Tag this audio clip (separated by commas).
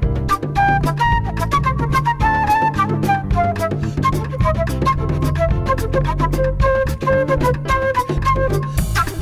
Flute